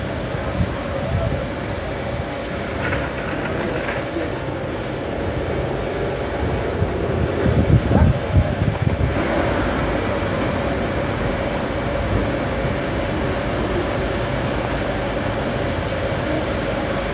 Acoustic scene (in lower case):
street